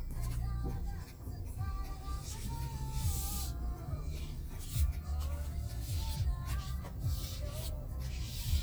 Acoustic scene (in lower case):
car